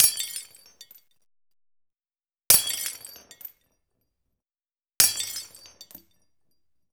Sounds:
glass
shatter

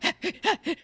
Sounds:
breathing
respiratory sounds

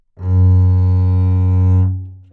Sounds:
musical instrument
music
bowed string instrument

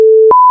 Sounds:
alarm

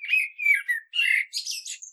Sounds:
wild animals
animal
bird

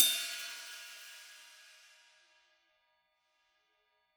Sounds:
percussion
cymbal
musical instrument
music
hi-hat

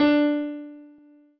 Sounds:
keyboard (musical)
musical instrument
music
piano

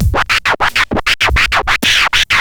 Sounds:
musical instrument
scratching (performance technique)
music

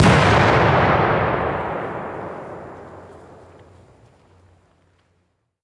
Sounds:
explosion

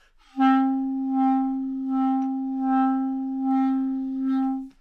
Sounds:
musical instrument
music
wind instrument

